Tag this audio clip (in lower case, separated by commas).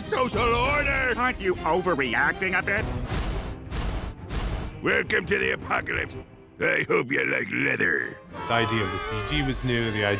music, speech